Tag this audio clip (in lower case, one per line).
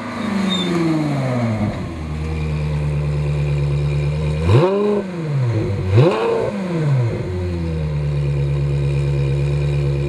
accelerating
outside, urban or man-made
vehicle
car